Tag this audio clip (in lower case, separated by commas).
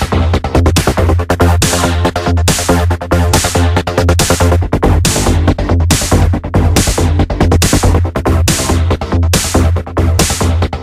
music, electronic music, techno, trance music